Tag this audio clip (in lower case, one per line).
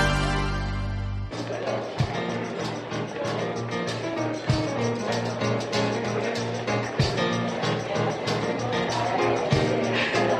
music
speech